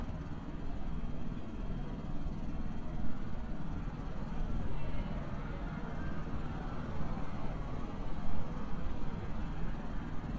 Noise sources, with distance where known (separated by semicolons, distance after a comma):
large-sounding engine